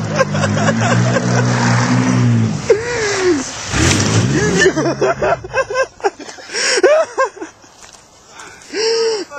An adult male is laughing and a motor vehicle engine is running and is revved